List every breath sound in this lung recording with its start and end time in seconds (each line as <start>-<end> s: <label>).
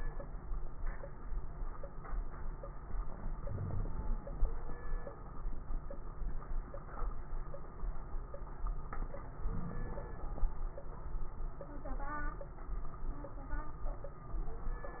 3.35-4.19 s: inhalation
3.45-3.88 s: wheeze
9.40-10.16 s: inhalation
9.40-10.16 s: crackles